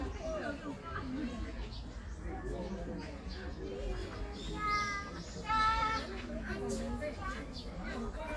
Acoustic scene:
park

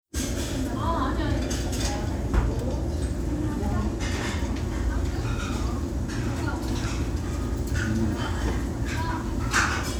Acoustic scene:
restaurant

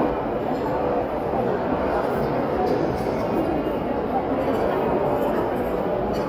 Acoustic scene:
crowded indoor space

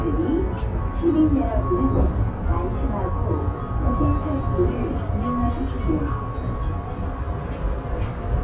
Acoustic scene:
subway train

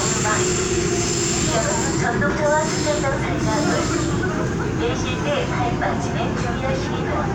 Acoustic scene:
subway train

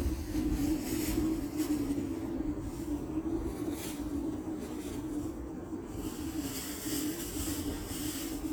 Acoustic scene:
residential area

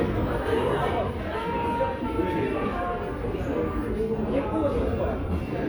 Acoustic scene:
crowded indoor space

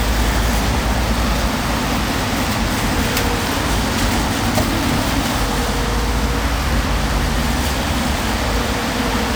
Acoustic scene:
street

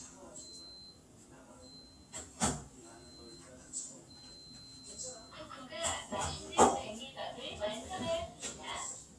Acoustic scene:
kitchen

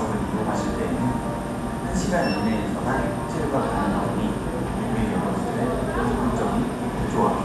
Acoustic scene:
cafe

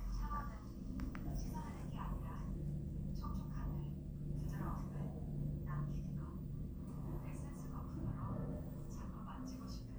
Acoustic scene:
elevator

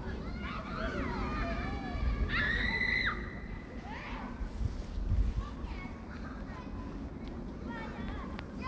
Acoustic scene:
park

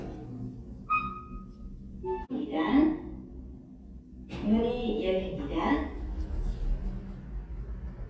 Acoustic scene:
elevator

